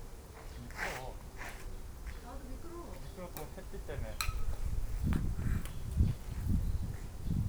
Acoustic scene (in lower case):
park